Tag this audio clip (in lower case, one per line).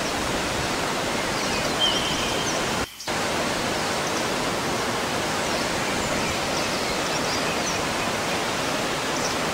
sound effect
pink noise